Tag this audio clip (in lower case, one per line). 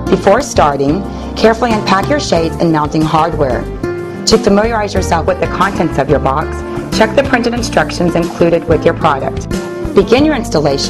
speech
music